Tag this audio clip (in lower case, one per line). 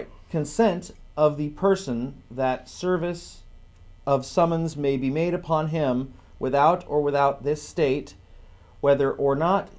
speech